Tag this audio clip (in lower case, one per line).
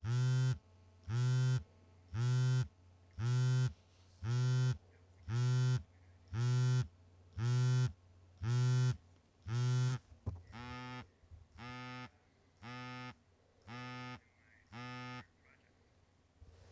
alarm
telephone